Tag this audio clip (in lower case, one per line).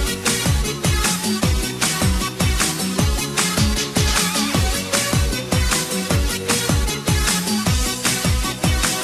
music